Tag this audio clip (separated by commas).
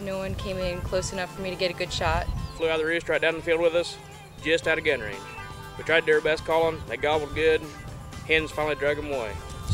Music, Speech